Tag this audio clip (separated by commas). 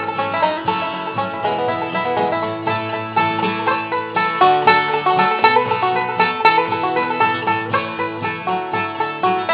playing banjo